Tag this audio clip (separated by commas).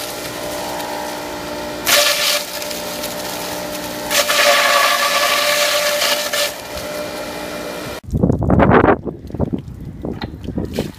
electric grinder grinding